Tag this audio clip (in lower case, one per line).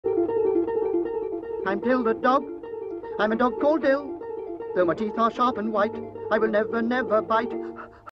speech
music